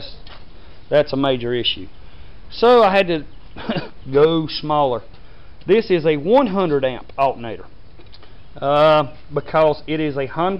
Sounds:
speech

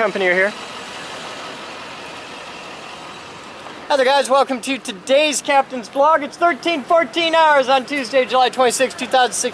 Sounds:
speech, vehicle, truck

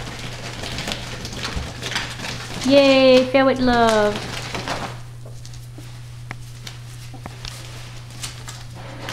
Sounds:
ferret dooking

